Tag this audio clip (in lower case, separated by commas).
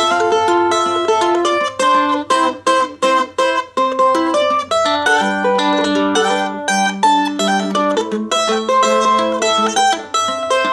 playing mandolin